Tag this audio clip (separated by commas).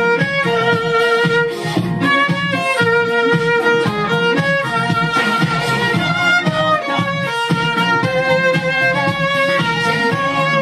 Music